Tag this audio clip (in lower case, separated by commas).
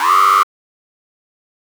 alarm